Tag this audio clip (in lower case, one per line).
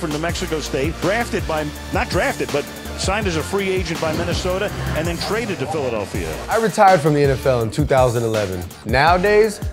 speech
music